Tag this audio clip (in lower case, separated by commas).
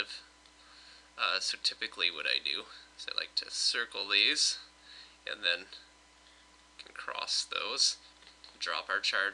speech